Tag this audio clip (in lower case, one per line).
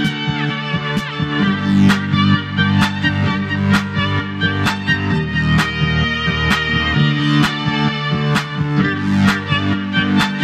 fiddle
music
musical instrument